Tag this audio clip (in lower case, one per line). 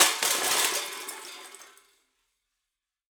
crushing